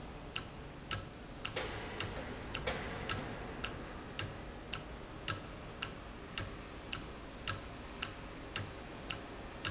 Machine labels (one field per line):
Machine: valve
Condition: normal